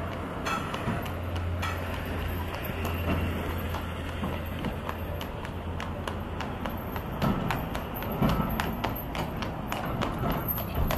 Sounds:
clip-clop, horse, animal

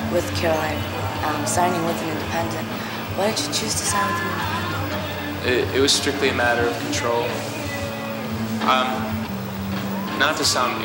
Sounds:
rhythm and blues, music, speech

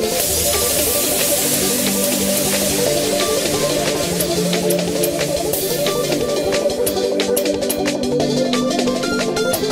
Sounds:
music

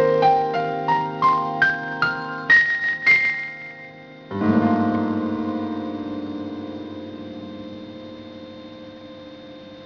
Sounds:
music, inside a small room, piano, keyboard (musical), musical instrument

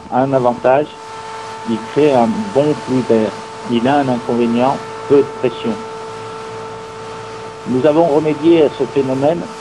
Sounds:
speech

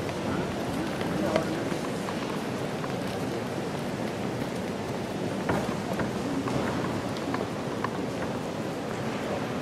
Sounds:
speech, inside a large room or hall

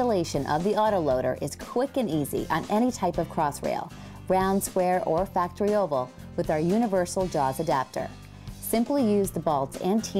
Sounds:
music, speech

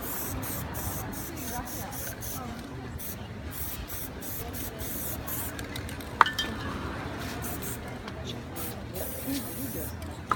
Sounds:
spray, speech

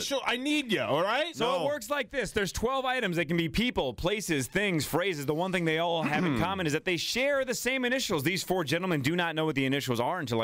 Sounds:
speech

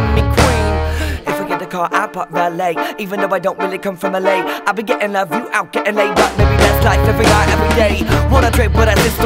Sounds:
dubstep, music, electronic music

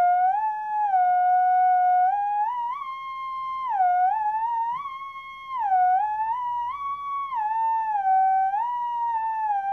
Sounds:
playing theremin

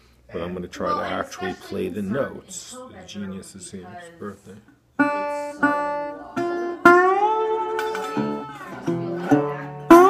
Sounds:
music, speech, guitar, strum, acoustic guitar, musical instrument, plucked string instrument

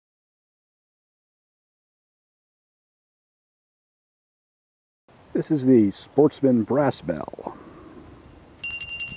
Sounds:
speech, bell

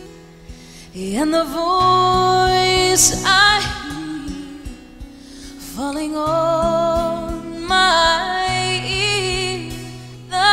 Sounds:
singing, music

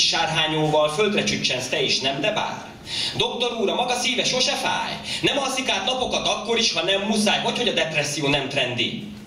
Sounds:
speech

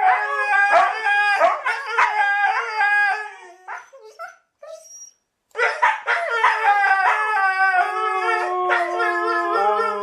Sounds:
dog howling

